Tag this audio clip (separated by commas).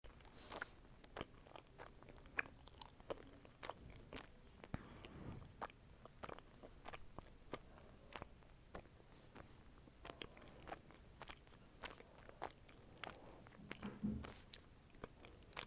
mastication